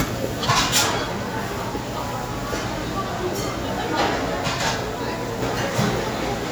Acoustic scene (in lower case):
crowded indoor space